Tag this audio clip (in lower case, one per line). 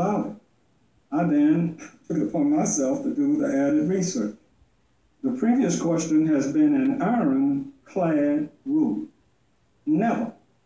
speech
narration
man speaking